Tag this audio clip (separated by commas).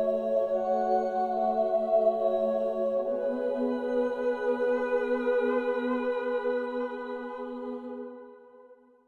Music, New-age music